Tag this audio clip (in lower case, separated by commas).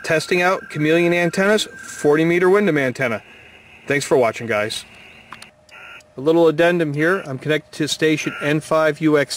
speech